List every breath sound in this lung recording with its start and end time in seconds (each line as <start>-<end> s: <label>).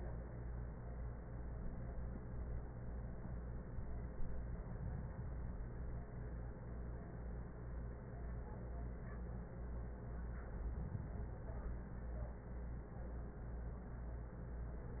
4.32-5.82 s: inhalation
10.36-11.86 s: inhalation